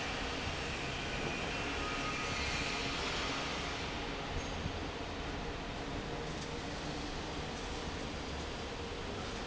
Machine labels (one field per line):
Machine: fan